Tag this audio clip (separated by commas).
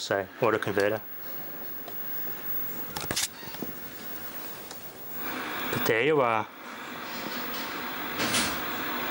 Speech